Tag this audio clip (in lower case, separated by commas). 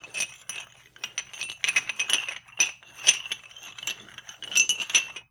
home sounds, dishes, pots and pans